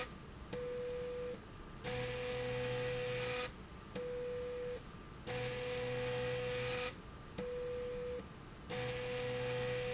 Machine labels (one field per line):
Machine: slide rail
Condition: abnormal